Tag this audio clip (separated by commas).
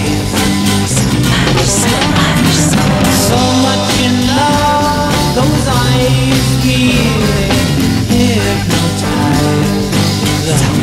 Music, Roll